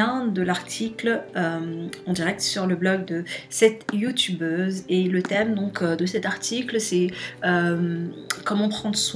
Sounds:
Speech, Music

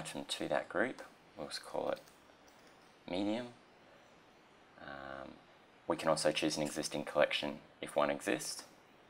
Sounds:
Speech

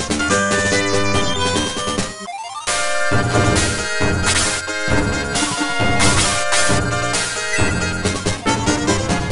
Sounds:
Music

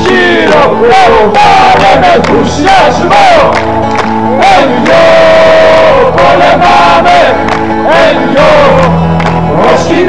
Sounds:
inside a large room or hall, Singing, Music

